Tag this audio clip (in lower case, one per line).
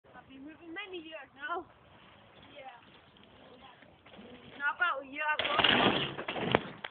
speech